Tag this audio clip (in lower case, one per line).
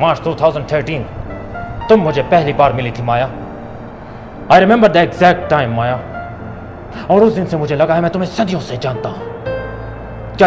music
speech
inside a large room or hall